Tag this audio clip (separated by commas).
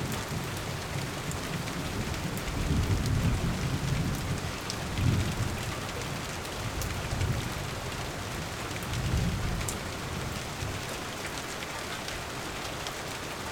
Thunderstorm, Rain, Water, Thunder